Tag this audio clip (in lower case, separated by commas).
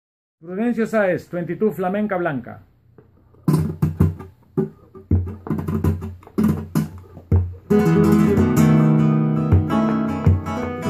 guitar, acoustic guitar, musical instrument, flamenco, plucked string instrument, music